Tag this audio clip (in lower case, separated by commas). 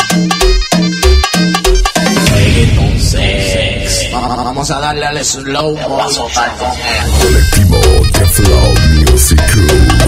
happy music, music